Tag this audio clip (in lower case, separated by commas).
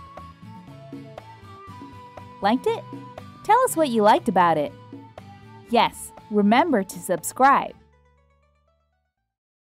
music, speech, music for children